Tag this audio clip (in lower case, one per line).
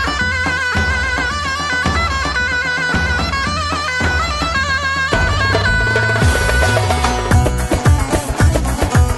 music
folk music